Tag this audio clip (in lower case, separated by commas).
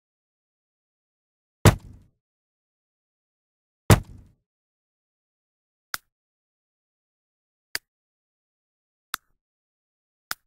silence